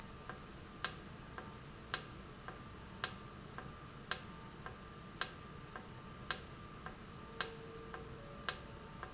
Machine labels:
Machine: valve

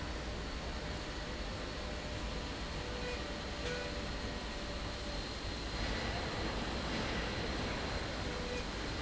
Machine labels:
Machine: slide rail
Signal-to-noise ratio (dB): -6 dB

